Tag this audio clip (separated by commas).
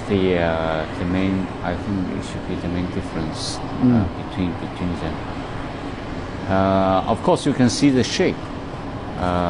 Speech